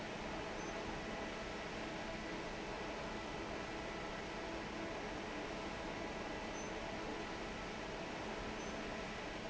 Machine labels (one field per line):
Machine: fan